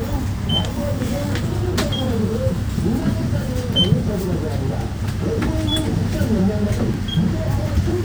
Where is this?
on a bus